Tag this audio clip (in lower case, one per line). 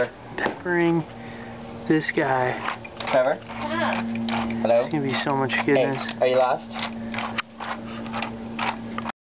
speech